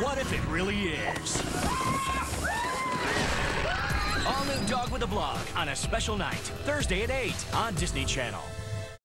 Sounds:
Speech, Music

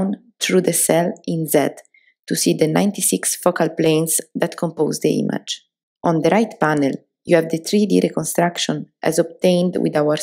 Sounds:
Speech

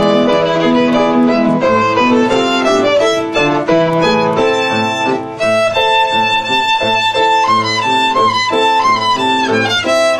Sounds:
Music, Violin, Musical instrument

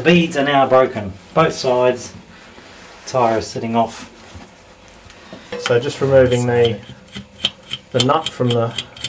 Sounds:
Speech

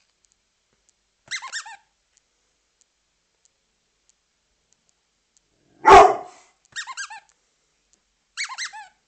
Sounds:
Bow-wow, Dog, Howl, pets, Whimper (dog), Animal

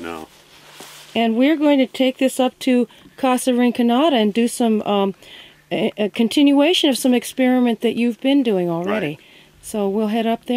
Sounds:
Speech

